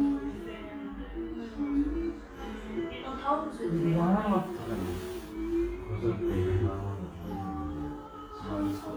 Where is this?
in a crowded indoor space